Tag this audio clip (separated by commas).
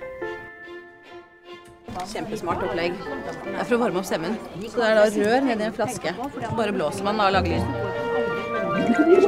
Speech, Music